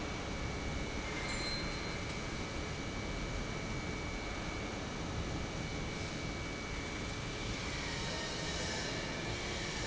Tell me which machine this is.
pump